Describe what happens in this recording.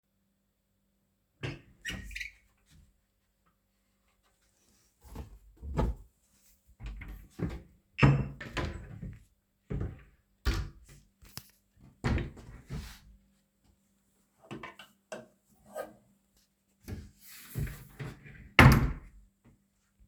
I opened the my room's door. Then I opened my wardrobe and searched for clothes. Then I closed the wardrobe.